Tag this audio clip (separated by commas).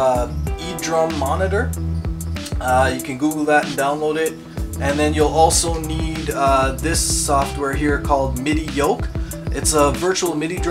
Speech, Musical instrument, Music